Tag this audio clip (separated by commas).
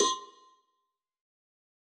Bell, Cowbell